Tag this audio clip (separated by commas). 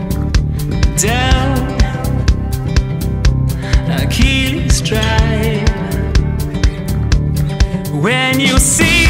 Rhythm and blues